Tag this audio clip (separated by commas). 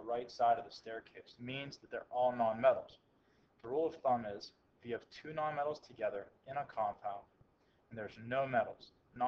Speech